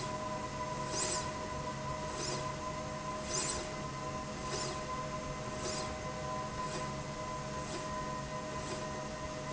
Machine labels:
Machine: slide rail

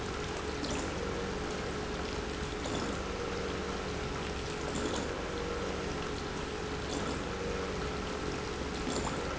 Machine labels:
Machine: pump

